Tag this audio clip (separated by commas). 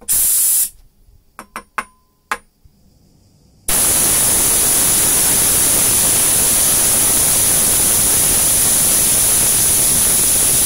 pumping water